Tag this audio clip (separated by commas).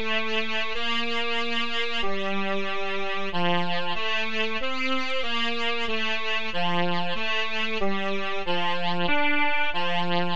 Classical music, Music